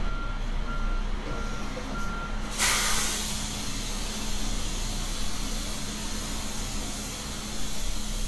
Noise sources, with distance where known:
large-sounding engine, near
reverse beeper, near

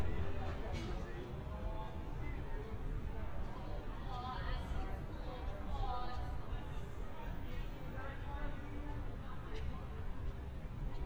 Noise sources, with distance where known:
person or small group talking, far

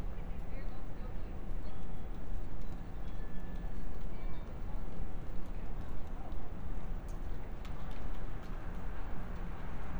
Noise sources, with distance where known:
unidentified human voice, far

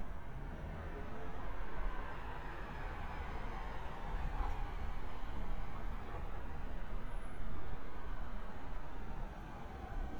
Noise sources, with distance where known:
medium-sounding engine, far

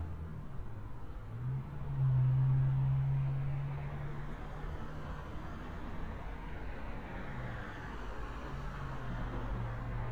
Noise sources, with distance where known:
medium-sounding engine

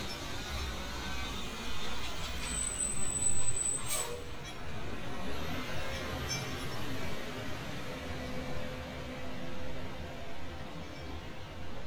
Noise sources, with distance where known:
large-sounding engine, near

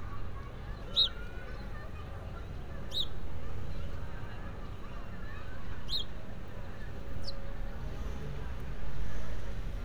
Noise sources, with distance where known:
person or small group shouting

